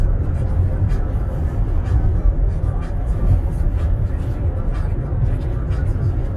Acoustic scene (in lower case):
car